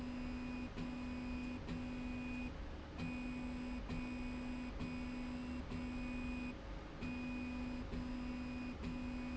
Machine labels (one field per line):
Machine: slide rail